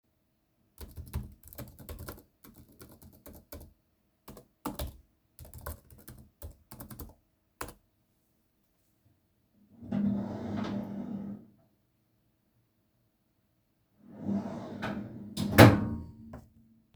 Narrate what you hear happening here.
I was working using my laptop. Then I needed a pen, so I opened the drawer to check if there are any and closed it.